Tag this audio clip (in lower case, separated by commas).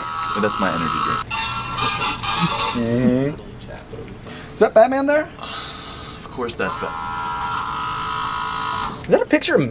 music, speech, inside a small room